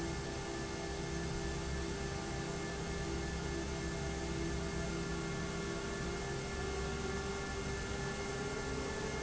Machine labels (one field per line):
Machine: fan